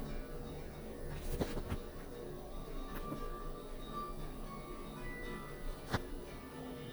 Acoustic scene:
elevator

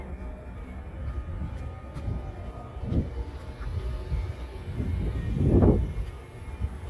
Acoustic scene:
residential area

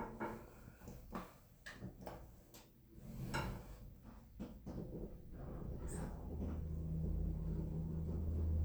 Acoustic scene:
elevator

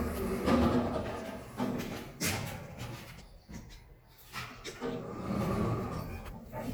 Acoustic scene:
elevator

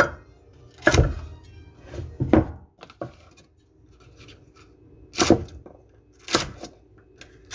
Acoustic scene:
kitchen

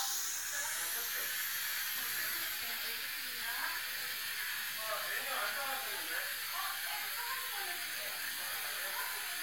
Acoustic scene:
restaurant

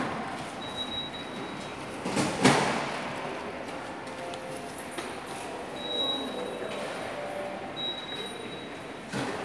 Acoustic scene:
subway station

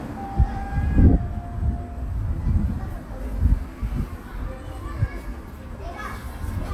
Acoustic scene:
park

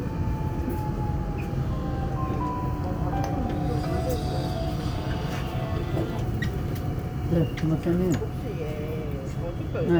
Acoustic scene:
subway train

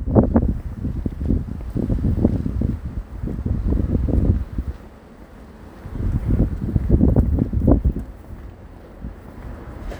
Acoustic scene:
residential area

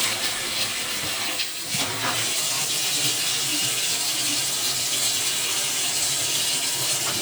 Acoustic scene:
kitchen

